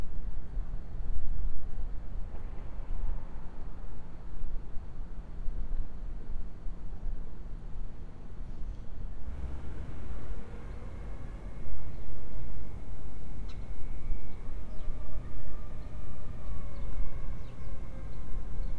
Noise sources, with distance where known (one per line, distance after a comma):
background noise